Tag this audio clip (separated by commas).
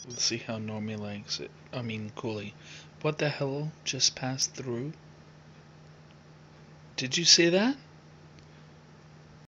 Speech